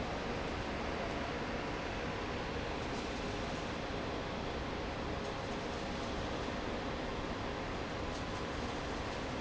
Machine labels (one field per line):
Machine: fan